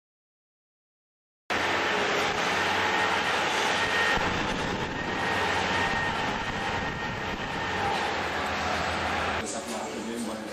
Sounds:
Speech

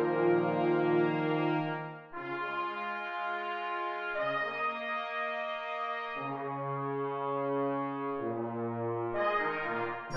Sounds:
Music

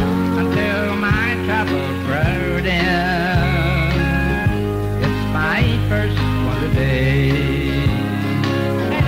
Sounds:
Music

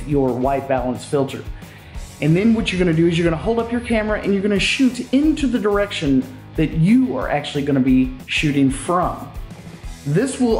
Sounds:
Speech

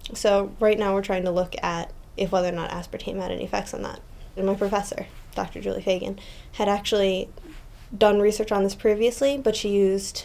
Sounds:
Speech

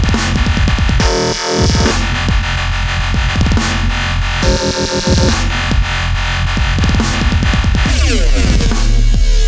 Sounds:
Electronic music, Music, Dubstep

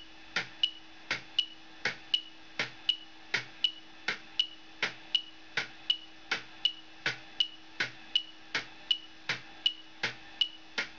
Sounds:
Tick-tock

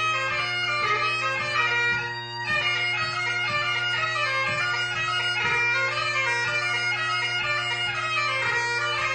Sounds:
Music

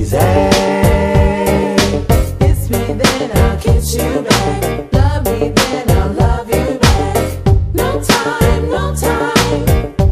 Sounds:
Music

